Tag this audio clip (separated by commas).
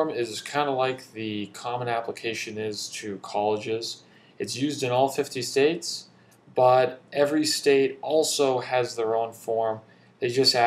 Speech